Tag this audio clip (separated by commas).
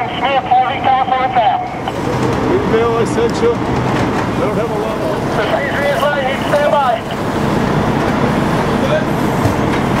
Speech